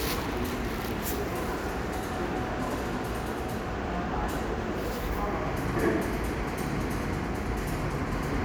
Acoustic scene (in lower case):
subway station